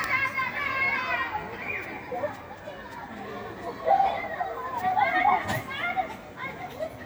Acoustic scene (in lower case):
residential area